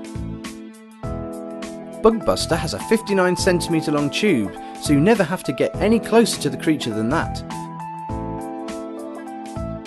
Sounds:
music, speech

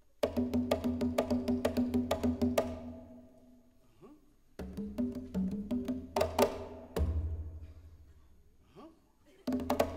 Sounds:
percussion, music

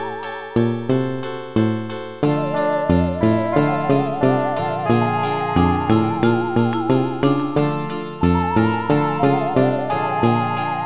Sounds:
music, soundtrack music

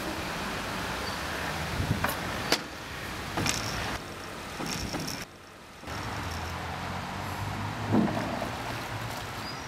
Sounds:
wind, canoe, rowboat, water vehicle

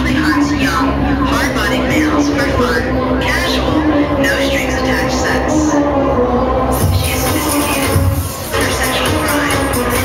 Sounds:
speech, music

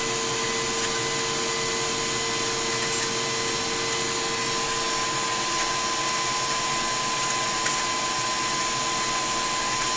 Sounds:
heavy engine (low frequency)

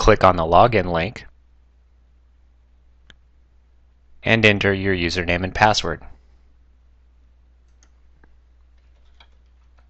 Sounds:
speech

